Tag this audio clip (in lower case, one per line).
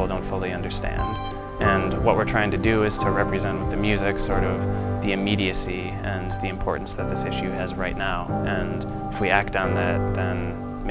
speech
musical instrument
music
cello
classical music